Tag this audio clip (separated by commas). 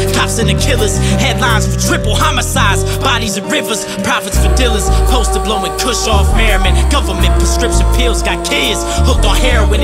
Theme music, Music, Soundtrack music